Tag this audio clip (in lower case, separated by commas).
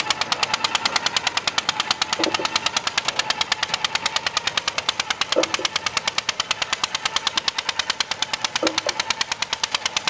engine, outside, rural or natural